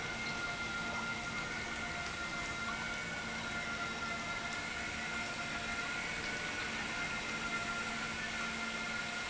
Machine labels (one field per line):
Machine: pump